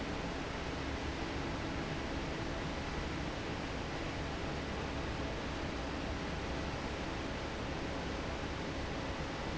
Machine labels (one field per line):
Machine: fan